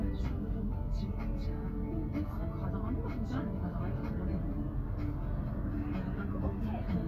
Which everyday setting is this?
car